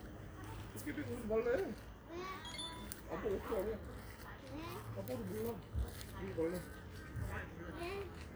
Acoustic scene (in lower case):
park